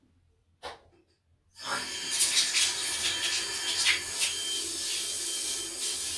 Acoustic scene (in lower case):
restroom